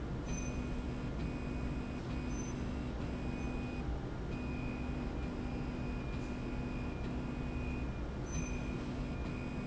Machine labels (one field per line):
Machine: slide rail